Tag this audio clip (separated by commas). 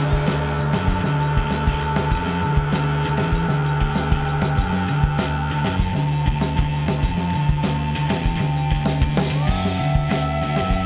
Music